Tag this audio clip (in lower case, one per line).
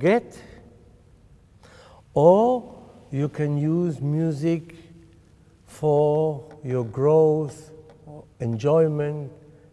speech